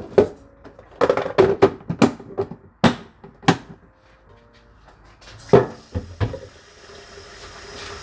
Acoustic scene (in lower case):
kitchen